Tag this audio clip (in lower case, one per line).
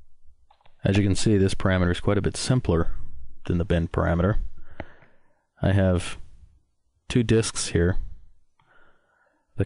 speech